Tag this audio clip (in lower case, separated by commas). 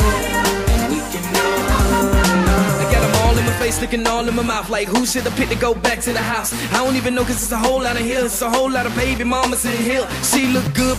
music, rapping, hip hop music